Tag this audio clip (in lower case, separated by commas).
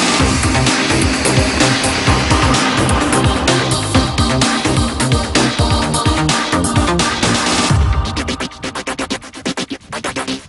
trance music, music